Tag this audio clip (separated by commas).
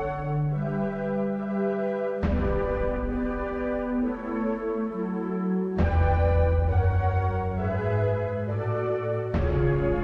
Rhythm and blues, Jazz, Music